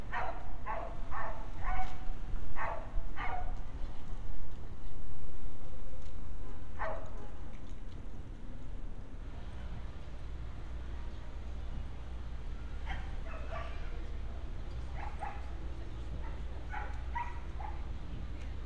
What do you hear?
dog barking or whining